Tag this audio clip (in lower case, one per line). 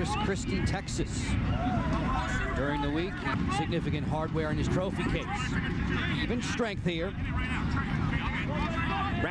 playing lacrosse